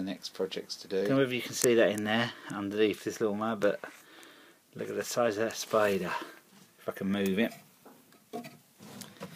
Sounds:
speech

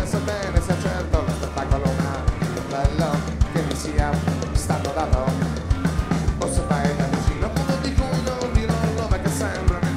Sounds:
music

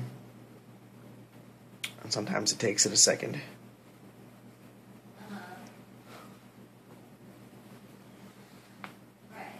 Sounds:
speech, inside a small room

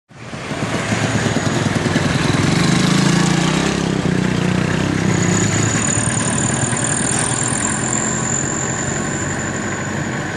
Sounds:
outside, urban or man-made, motor vehicle (road)

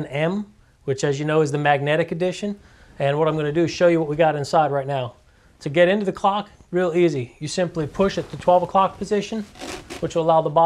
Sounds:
speech

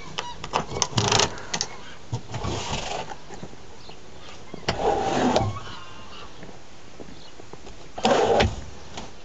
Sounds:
animal, domestic animals

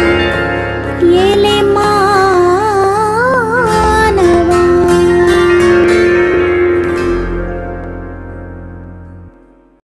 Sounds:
harmonic, harpsichord, music

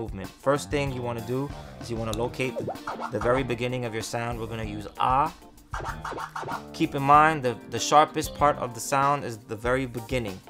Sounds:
disc scratching

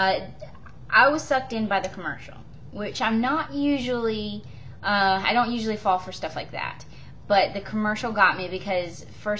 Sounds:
speech

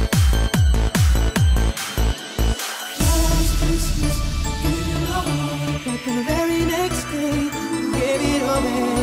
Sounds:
music, electronic music

